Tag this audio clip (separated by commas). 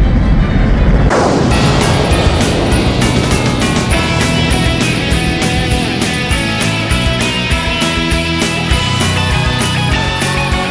Music